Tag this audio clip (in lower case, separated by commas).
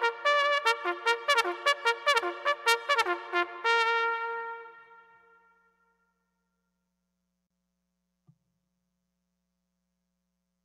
playing bugle